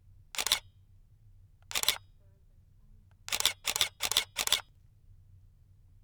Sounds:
mechanisms
camera

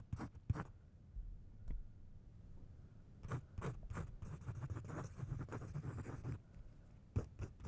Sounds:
writing
home sounds

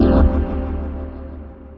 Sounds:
musical instrument
organ
keyboard (musical)
music

